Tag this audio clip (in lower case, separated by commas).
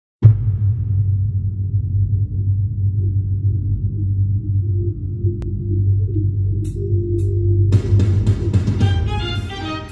fiddle, music, bowed string instrument